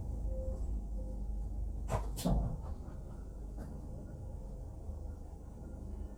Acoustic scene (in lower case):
bus